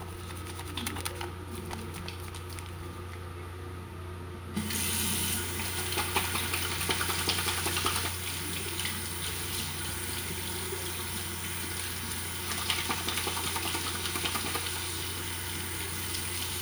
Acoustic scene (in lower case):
restroom